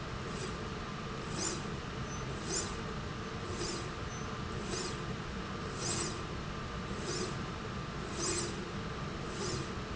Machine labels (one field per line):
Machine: slide rail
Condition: normal